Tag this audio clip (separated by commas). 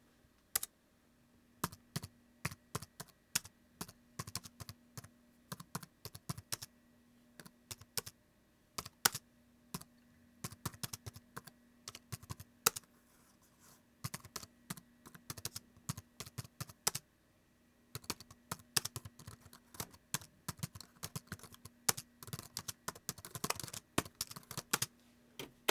Typing, home sounds